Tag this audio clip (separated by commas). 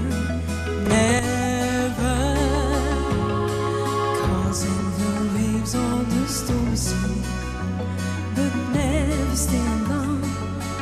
Music